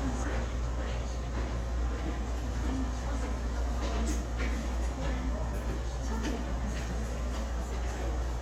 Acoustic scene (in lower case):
subway station